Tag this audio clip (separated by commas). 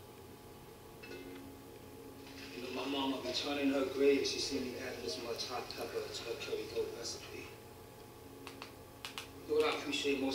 Speech